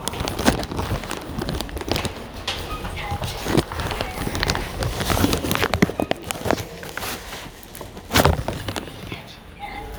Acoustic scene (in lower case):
elevator